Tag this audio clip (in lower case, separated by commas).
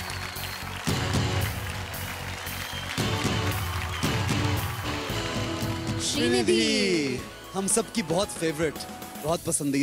music, speech